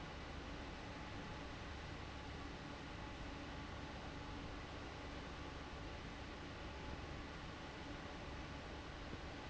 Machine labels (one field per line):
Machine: fan